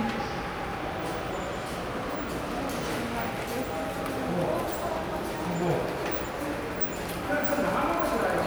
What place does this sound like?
subway station